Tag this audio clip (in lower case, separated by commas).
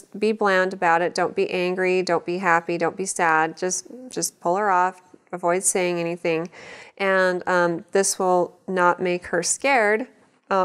speech